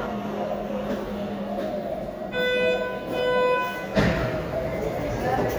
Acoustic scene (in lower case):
subway station